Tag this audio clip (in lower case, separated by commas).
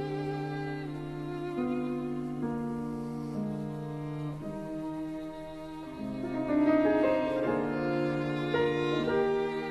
musical instrument, violin, music